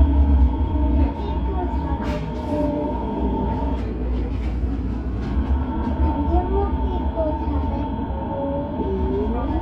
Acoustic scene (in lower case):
subway train